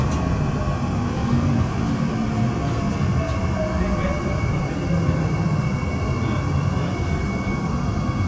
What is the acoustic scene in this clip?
subway train